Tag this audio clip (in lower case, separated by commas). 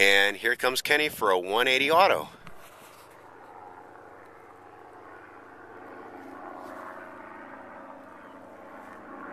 speech